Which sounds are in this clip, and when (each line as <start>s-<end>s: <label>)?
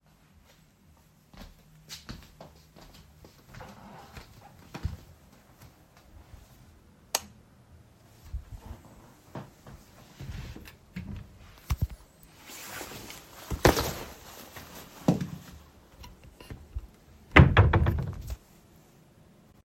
1.3s-7.0s: footsteps
7.1s-7.4s: light switch
10.9s-11.3s: wardrobe or drawer
17.3s-18.4s: wardrobe or drawer